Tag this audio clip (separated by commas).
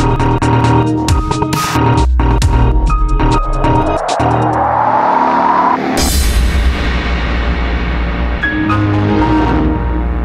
Dubstep, Electronic music, Music